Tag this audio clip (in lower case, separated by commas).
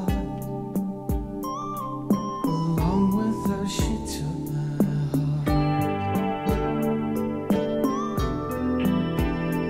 music